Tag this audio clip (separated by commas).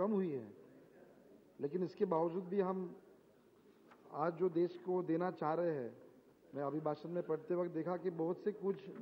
Narration, man speaking, Speech